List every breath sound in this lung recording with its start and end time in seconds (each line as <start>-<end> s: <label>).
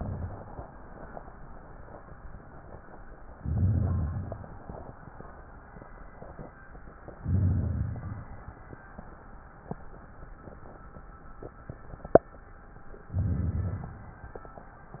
3.38-4.59 s: inhalation
3.38-4.59 s: crackles
7.21-8.37 s: inhalation
7.21-8.37 s: crackles
13.11-14.04 s: inhalation
13.11-14.04 s: crackles